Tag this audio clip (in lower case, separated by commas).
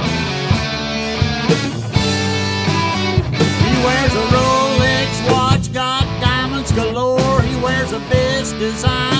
music